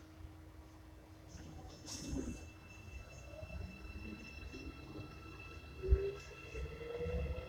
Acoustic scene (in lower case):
subway train